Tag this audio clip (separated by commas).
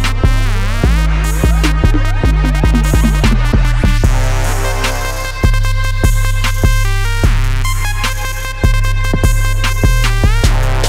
Music